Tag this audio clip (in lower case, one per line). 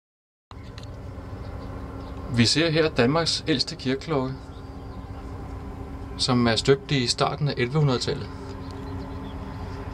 speech